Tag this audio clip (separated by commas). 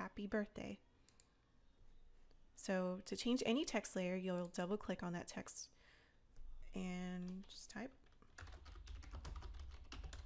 Computer keyboard